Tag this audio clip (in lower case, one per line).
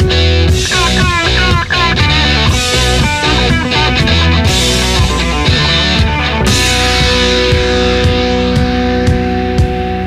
heavy metal